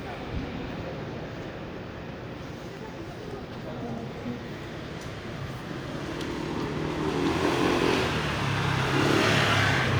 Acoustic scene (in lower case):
residential area